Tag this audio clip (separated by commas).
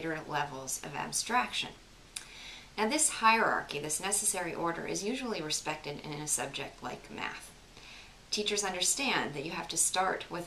Speech